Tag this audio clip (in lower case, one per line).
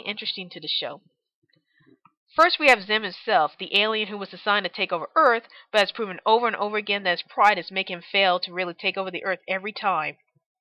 monologue